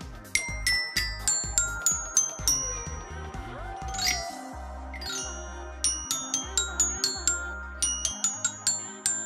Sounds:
playing glockenspiel

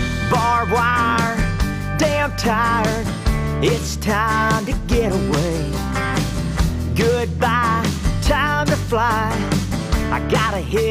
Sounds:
music, rhythm and blues, blues

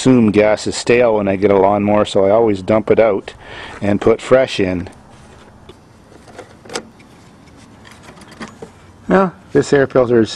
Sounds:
speech

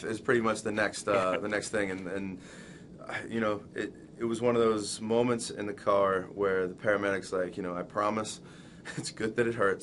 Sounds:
speech

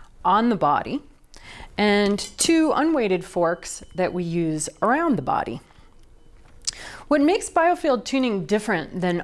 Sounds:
speech

